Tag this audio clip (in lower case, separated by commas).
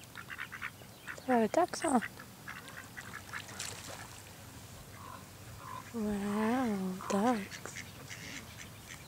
animal, duck, speech, quack